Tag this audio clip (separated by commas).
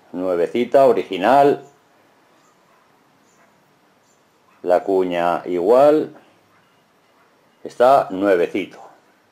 planing timber